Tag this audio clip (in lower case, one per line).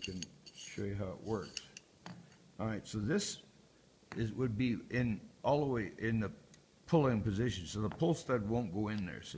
speech